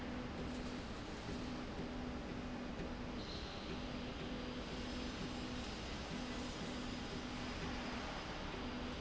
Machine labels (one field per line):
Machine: slide rail